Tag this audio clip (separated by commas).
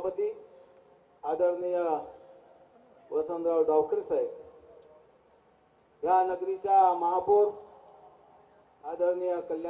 Speech, man speaking, Narration